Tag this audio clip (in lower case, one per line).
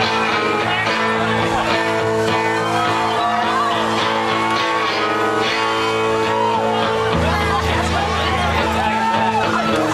rhythm and blues
music